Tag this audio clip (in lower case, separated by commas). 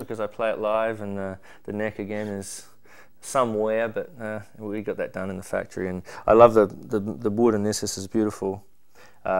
speech